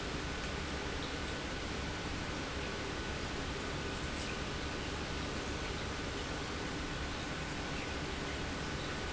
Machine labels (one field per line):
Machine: pump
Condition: normal